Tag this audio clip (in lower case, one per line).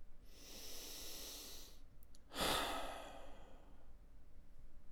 respiratory sounds
sigh
human voice
breathing